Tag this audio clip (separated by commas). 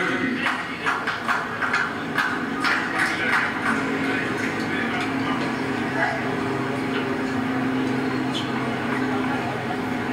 Speech